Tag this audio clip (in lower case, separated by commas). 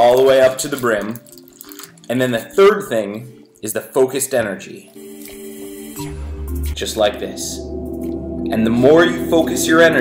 gurgling, music, speech